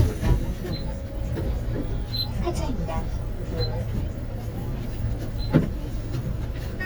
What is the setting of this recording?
bus